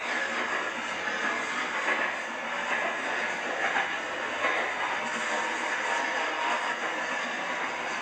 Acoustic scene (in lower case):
subway train